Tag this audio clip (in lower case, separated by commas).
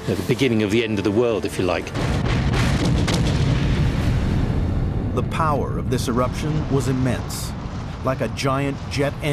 volcano explosion